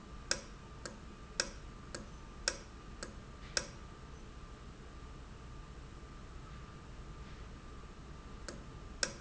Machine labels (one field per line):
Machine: valve